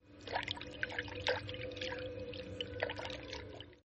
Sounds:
Liquid

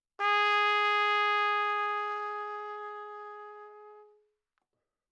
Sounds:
Trumpet, Musical instrument, Music, Brass instrument

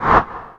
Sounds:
swoosh

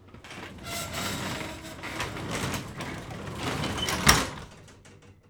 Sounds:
Slam, Domestic sounds, Door

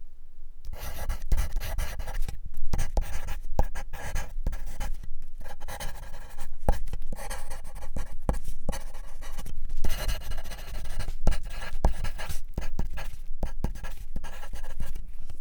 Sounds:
Writing, home sounds

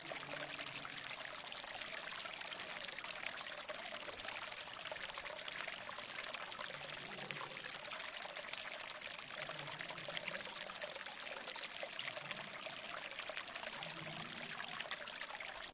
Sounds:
Stream, Water

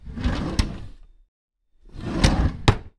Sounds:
Drawer open or close, home sounds

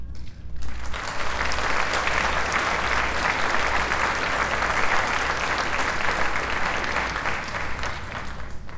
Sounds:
Crowd, Applause, Human group actions

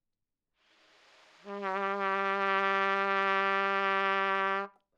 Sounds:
Musical instrument, Brass instrument, Trumpet, Music

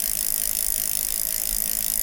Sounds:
Bicycle, Vehicle

